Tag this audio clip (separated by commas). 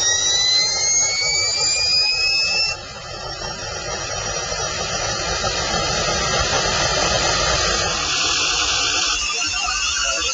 revving